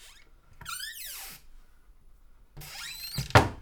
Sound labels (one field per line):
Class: cupboard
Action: closing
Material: wooden